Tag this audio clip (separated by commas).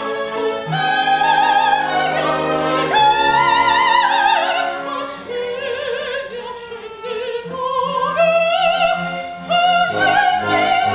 Music, Opera